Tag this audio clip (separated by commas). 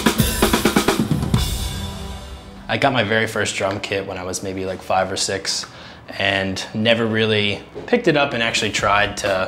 Speech, Music